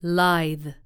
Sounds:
woman speaking, Speech, Human voice

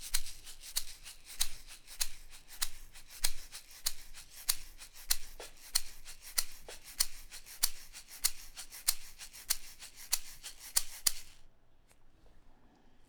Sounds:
Musical instrument, Percussion, Music, Rattle (instrument)

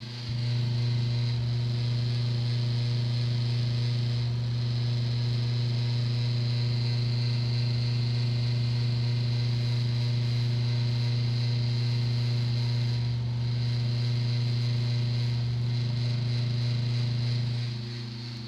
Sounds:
Mechanical fan, Mechanisms

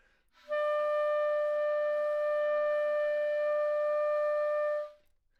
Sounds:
woodwind instrument, Music, Musical instrument

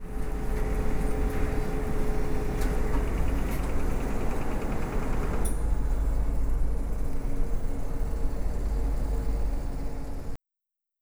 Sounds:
Mechanisms, Printer

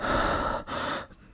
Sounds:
Respiratory sounds, Breathing

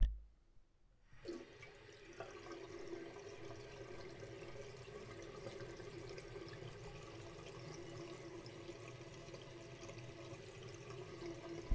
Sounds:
Domestic sounds, Sink (filling or washing), Water tap

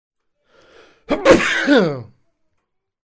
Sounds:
Respiratory sounds, Sneeze

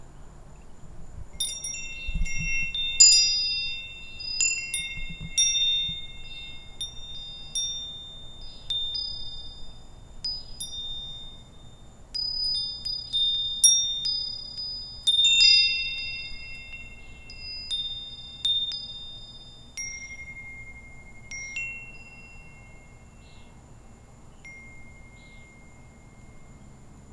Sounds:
Bell, Chime

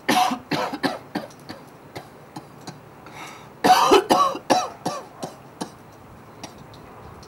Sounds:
Respiratory sounds, Cough

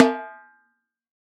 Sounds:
Musical instrument, Music, Drum, Snare drum, Percussion

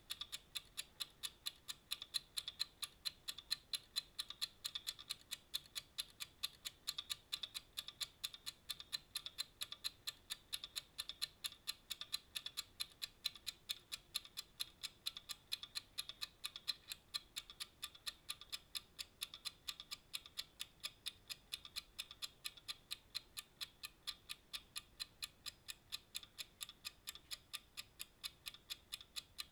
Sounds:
Clock, Mechanisms

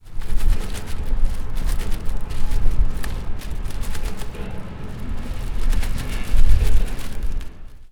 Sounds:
Wind

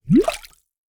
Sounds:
Gurgling, Water

